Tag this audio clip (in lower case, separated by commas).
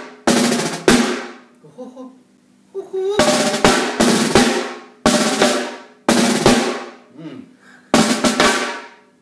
speech, music